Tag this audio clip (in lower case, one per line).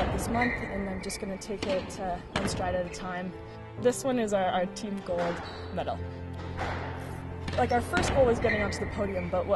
playing squash